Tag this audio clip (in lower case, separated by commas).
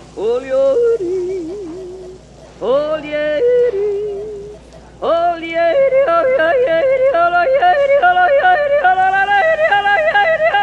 yodelling